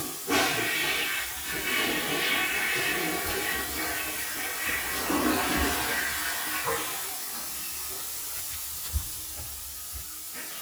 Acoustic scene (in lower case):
restroom